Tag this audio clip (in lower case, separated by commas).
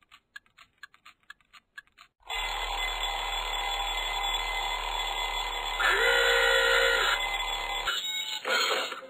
tick-tock, buzzer